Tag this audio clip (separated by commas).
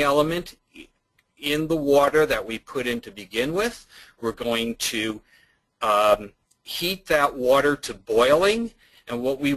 Speech